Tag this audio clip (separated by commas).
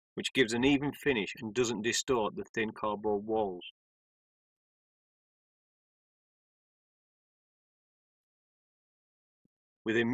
Speech